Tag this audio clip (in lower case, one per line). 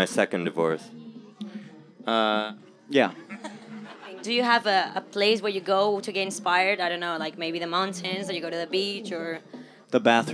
speech
music